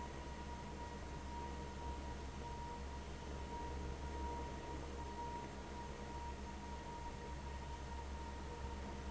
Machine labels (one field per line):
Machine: fan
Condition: abnormal